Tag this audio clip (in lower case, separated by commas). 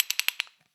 ratchet, tools, mechanisms